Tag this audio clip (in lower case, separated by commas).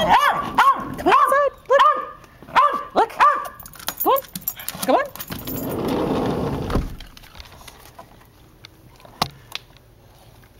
bow-wow, speech, whimper (dog), yip, bark, dog, domestic animals